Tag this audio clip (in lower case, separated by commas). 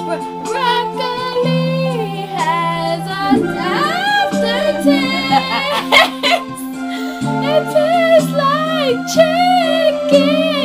music, synthetic singing